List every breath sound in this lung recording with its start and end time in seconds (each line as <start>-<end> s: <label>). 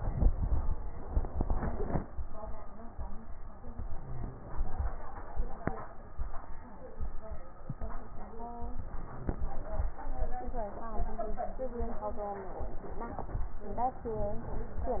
3.72-4.82 s: inhalation
8.73-9.83 s: inhalation
13.78-14.99 s: inhalation